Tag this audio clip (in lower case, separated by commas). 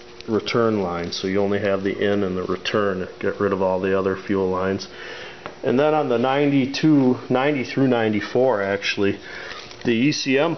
speech